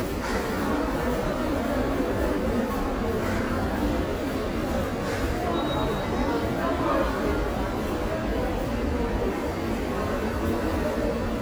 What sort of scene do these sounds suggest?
subway station